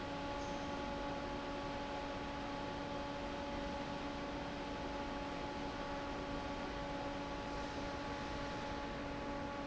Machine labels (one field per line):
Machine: fan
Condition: normal